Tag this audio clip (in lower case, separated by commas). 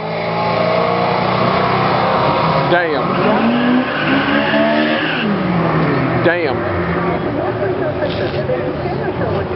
speech